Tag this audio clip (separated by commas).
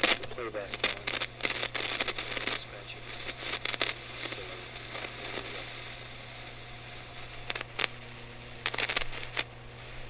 Speech, inside a small room